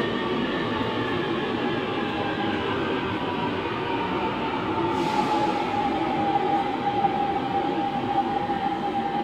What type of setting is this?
subway station